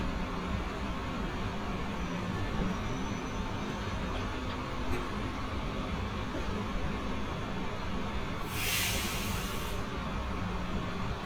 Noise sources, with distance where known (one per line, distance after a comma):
engine of unclear size, far